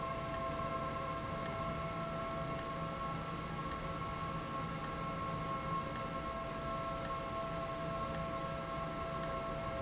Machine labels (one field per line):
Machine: valve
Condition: abnormal